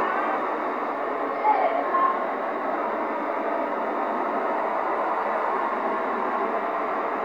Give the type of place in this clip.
street